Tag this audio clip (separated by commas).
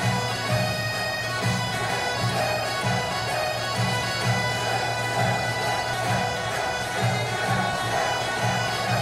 Music, Bagpipes